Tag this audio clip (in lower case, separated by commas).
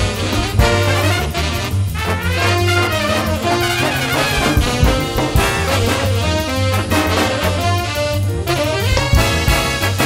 music, jazz